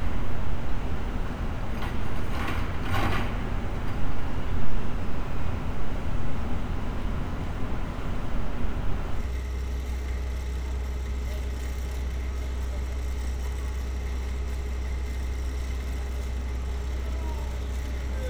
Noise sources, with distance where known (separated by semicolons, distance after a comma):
unidentified impact machinery